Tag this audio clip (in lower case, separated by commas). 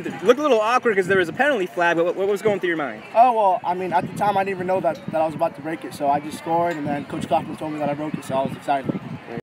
speech